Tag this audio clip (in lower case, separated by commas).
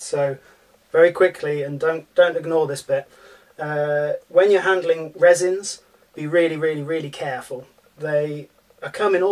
speech